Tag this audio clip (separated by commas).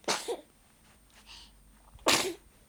Sneeze, Respiratory sounds